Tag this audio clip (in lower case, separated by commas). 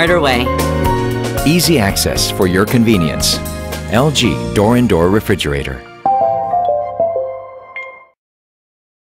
speech, music